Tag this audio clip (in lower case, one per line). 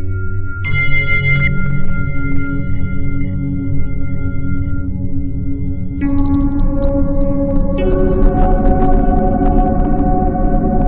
inside a small room
music